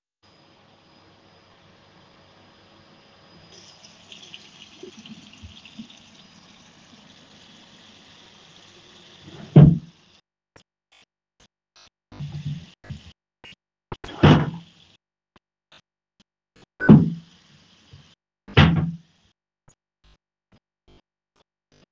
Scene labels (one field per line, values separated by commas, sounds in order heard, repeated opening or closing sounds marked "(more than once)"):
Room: kitchen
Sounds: vacuum cleaner, running water, wardrobe or drawer (more than once)